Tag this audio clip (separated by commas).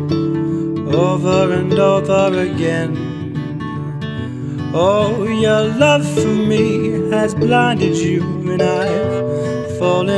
Music